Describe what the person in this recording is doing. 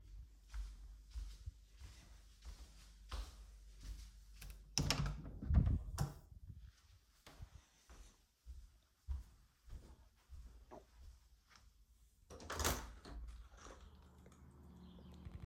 I went to the bedroom, opened the door, went to the bedroom window and opened it.